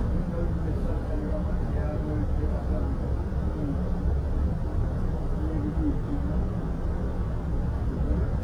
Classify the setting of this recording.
bus